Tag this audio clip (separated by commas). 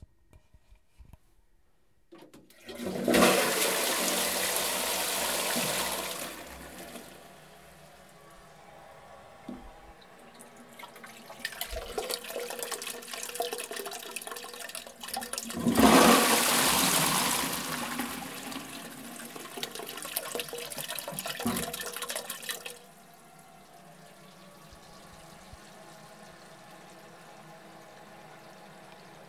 home sounds, Toilet flush